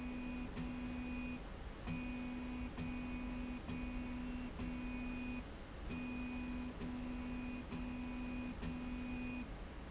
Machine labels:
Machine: slide rail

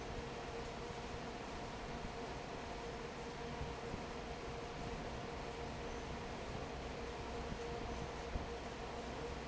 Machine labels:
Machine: fan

